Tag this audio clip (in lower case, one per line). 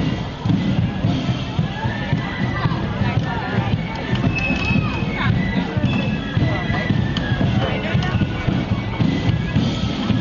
music
speech